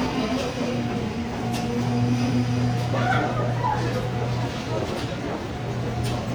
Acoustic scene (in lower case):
subway station